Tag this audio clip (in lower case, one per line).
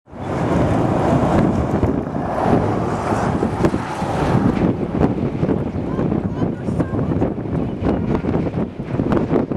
tornado roaring